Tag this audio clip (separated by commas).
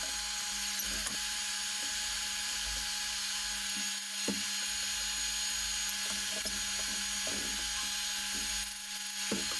Tools, Power tool